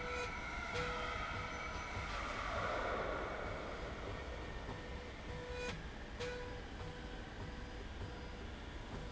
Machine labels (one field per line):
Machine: slide rail